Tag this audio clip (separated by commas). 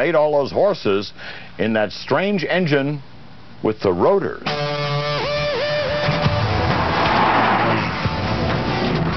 Music, Speech